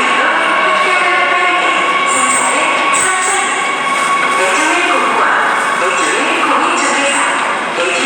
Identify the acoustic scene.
subway station